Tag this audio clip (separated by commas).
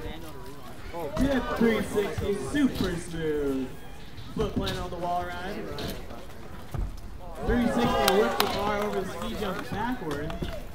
Speech